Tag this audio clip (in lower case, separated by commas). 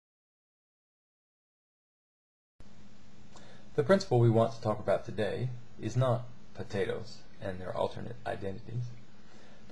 speech